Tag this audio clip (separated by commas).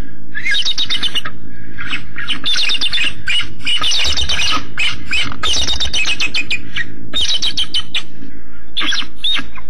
Bird